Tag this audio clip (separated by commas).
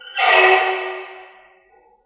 Squeak